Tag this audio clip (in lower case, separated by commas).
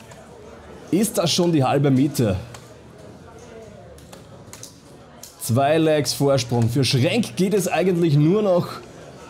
playing darts